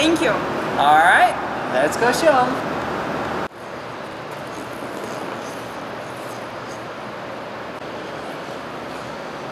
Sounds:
Speech

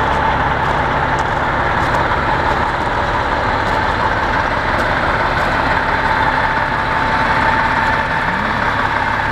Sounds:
Vehicle, driving buses, Bus

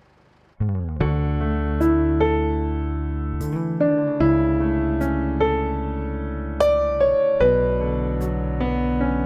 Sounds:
Music

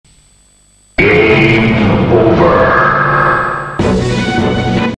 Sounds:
Music, Speech

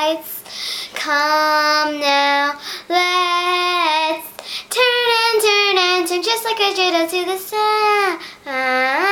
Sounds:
Child singing

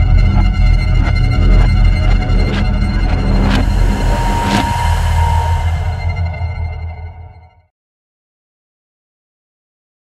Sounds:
Music

